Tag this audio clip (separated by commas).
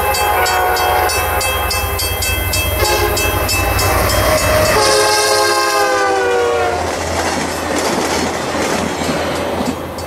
train horning